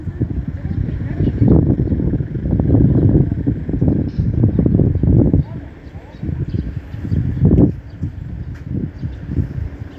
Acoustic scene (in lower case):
residential area